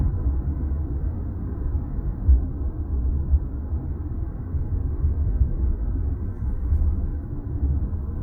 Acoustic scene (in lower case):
car